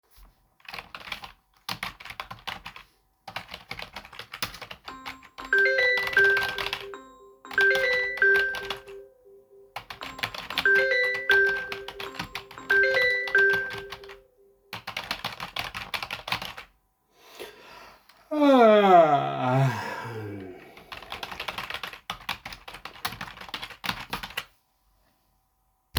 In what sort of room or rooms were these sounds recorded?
office